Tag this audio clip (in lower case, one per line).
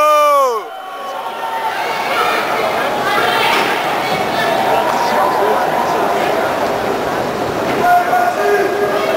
speech